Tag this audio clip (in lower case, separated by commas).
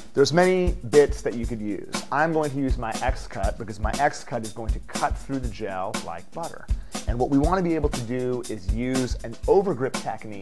speech, music